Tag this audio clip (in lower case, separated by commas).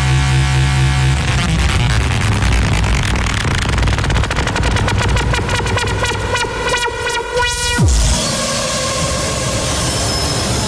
electronic music, music, techno